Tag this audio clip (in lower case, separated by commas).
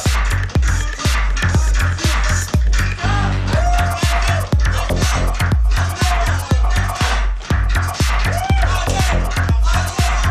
music, inside a large room or hall